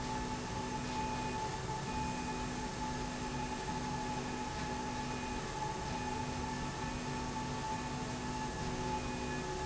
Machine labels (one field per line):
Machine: slide rail